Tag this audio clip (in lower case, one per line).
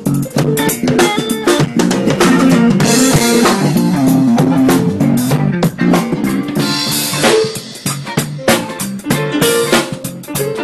funk
music